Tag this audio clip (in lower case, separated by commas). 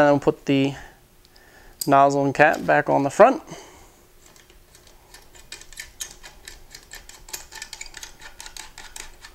speech